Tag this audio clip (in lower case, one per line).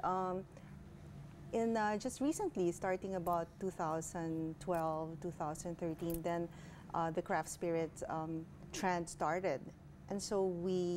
inside a large room or hall
speech